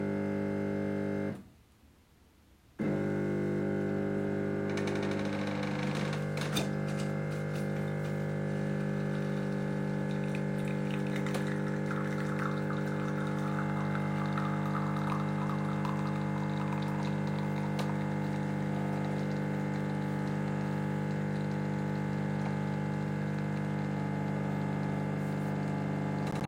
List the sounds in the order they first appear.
coffee machine